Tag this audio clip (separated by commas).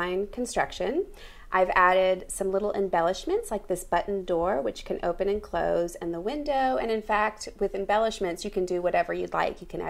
Speech